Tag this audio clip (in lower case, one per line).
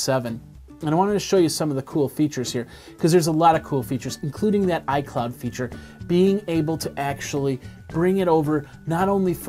speech